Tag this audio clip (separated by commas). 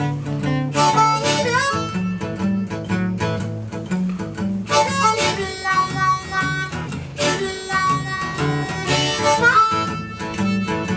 playing harmonica